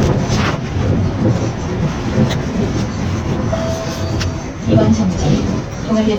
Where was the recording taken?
on a bus